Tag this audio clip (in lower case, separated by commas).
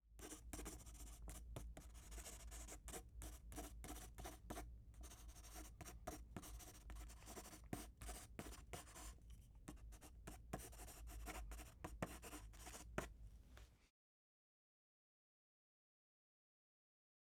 domestic sounds, writing